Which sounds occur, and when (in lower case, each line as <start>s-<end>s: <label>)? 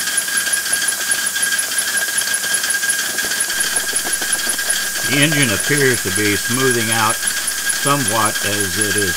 0.0s-9.1s: mechanisms
5.0s-7.1s: male speech
7.8s-9.1s: male speech